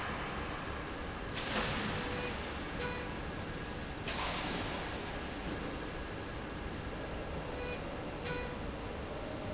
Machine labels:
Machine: slide rail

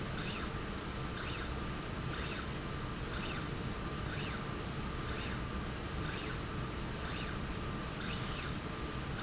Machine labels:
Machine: slide rail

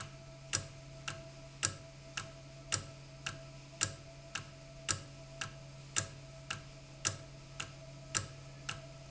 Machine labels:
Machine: valve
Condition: normal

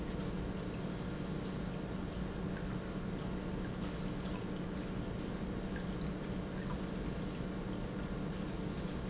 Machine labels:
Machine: pump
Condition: normal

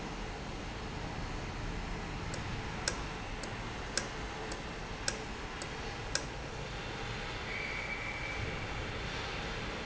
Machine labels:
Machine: valve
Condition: normal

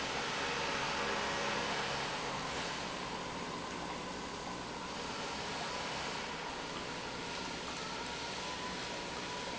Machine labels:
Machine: pump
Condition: normal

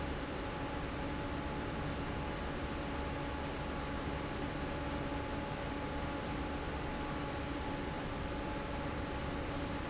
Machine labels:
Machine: fan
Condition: normal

